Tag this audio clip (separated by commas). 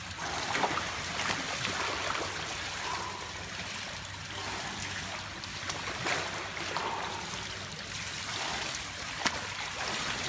swimming